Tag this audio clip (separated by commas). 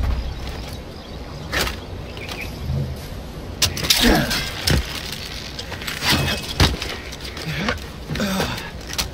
outside, rural or natural